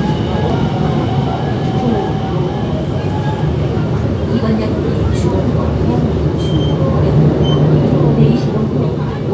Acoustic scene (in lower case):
subway train